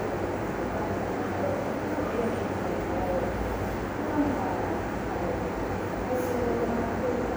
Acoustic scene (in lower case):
subway station